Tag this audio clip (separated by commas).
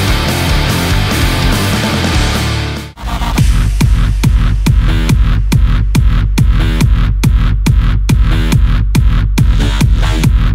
Music